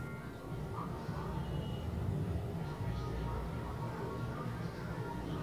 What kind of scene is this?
elevator